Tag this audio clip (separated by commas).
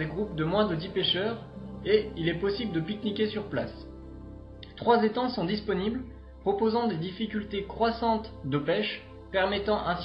Speech, Music